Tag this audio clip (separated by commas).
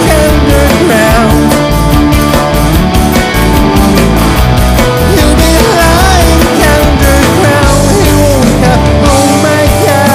Progressive rock, Singing, Music